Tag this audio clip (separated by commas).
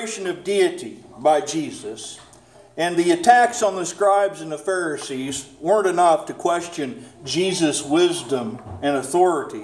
Speech, inside a large room or hall